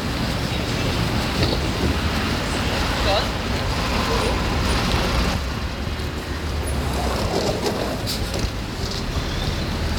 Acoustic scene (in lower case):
street